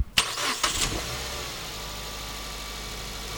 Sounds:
engine

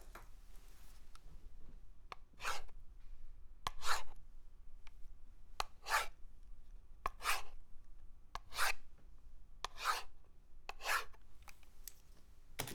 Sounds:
domestic sounds, writing

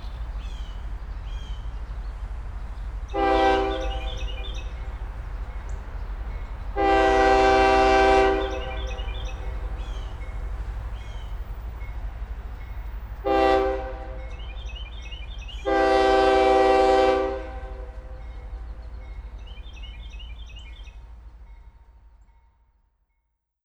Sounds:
rail transport, train, vehicle

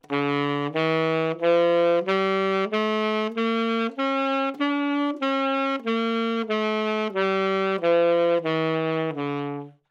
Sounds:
music, woodwind instrument, musical instrument

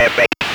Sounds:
speech, human voice

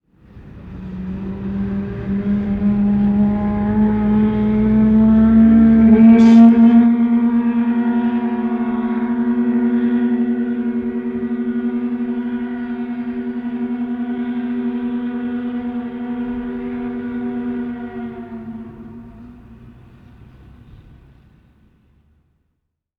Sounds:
alarm

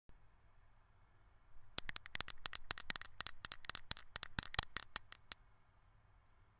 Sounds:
bell

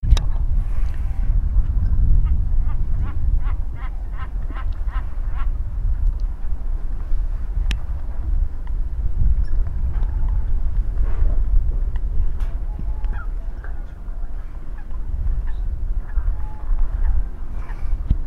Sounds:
wild animals, wind, bird, animal

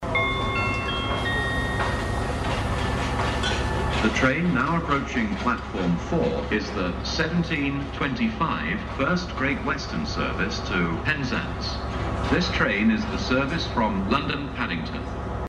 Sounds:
vehicle, train, rail transport

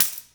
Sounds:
tambourine, music, musical instrument, percussion

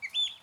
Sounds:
animal, bird, wild animals

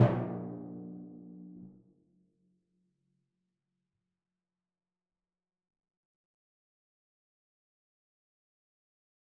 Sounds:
musical instrument, percussion, music, drum

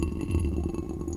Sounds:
pour, liquid, trickle

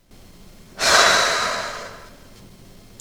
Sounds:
respiratory sounds, breathing, human voice, sigh

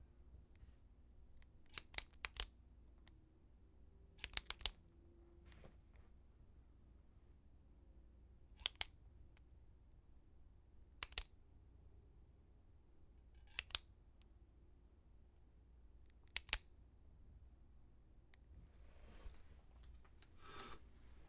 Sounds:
tick

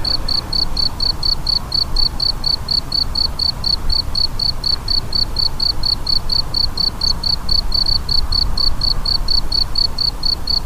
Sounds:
cricket, insect, animal, wild animals

